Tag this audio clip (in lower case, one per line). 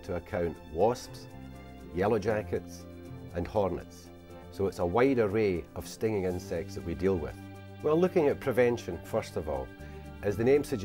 music
speech